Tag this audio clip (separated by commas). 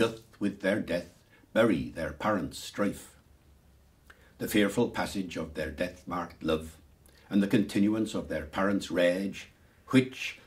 Speech